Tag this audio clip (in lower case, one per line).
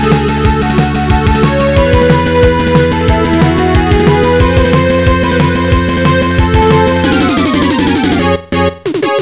music